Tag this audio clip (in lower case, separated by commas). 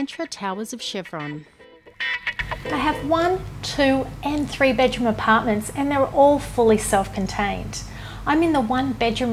speech, music